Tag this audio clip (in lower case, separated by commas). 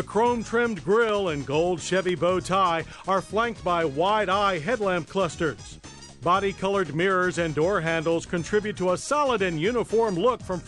music, speech